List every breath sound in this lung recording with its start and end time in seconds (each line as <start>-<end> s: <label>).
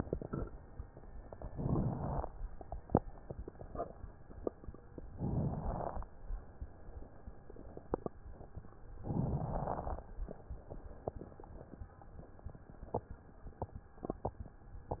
1.48-2.30 s: inhalation
1.48-2.30 s: crackles
5.16-5.98 s: inhalation
5.16-5.98 s: crackles
9.01-10.04 s: inhalation
9.01-10.04 s: crackles